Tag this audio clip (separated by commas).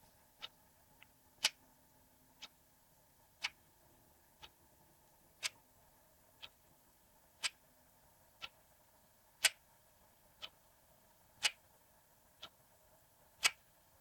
Mechanisms, Tick-tock, Clock